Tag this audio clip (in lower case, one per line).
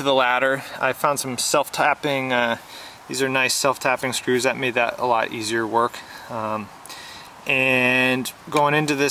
speech